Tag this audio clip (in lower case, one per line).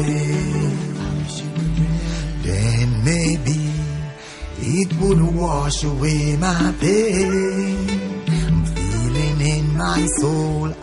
music